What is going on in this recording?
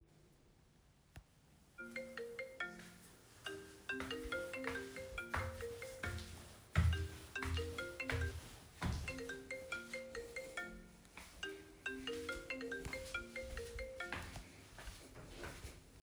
My phone started ringing while I was walking across the room. I walked towards the phone and picked it up.